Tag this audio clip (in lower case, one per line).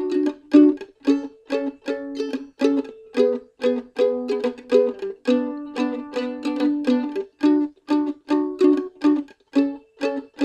playing mandolin